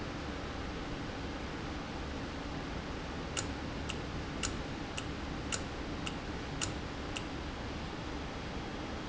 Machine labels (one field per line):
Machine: valve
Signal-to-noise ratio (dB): -6 dB